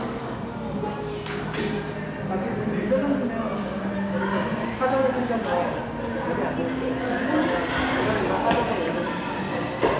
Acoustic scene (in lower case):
cafe